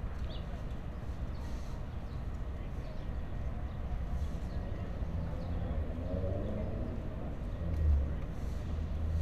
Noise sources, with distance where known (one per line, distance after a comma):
medium-sounding engine, far